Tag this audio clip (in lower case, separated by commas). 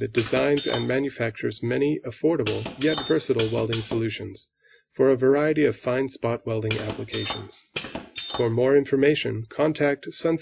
speech